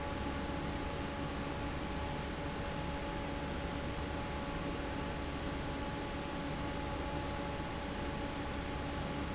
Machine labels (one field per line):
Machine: fan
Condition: normal